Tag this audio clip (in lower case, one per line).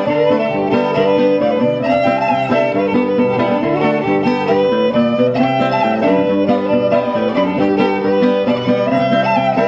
fiddle
bowed string instrument